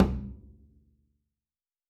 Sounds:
music
bowed string instrument
musical instrument

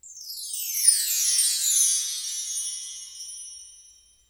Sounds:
bell
chime
wind chime

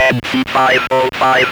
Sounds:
speech
human voice

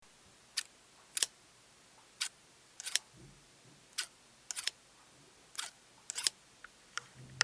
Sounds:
scissors
home sounds

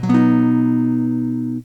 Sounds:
strum
music
musical instrument
acoustic guitar
guitar
plucked string instrument

